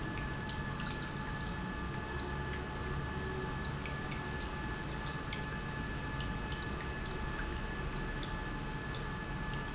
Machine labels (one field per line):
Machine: pump